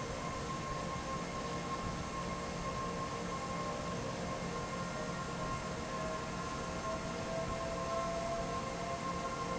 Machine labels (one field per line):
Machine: fan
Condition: normal